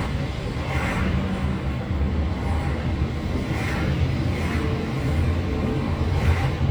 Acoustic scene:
car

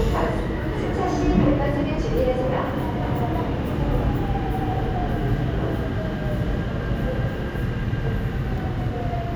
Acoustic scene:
subway station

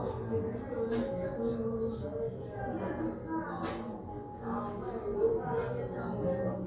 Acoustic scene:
crowded indoor space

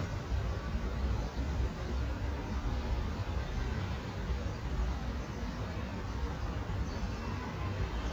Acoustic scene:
residential area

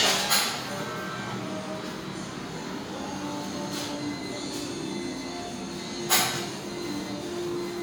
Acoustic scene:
restaurant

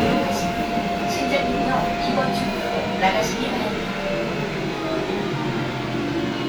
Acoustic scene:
subway train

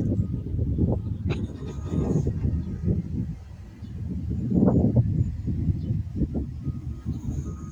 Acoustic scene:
park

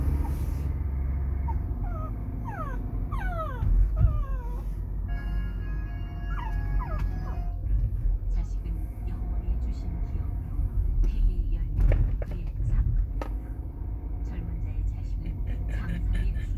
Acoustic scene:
car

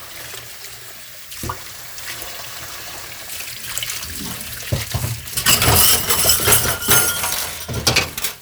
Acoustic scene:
kitchen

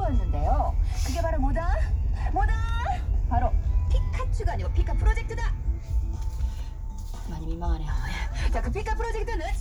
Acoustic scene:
car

